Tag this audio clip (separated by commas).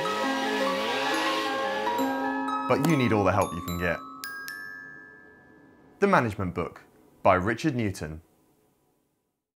Music, Speech